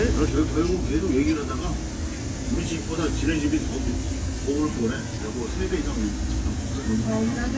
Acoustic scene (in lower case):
crowded indoor space